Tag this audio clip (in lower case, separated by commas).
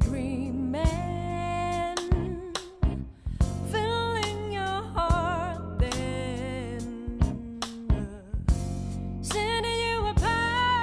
independent music, music